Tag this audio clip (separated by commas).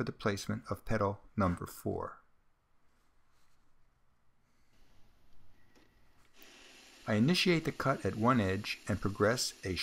Speech